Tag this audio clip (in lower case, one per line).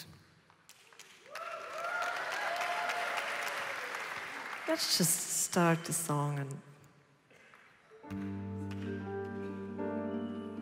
music
speech